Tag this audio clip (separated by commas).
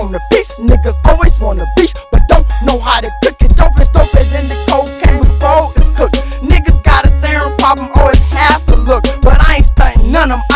Music, Hip hop music